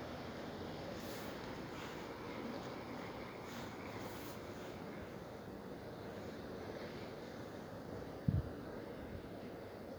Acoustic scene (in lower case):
residential area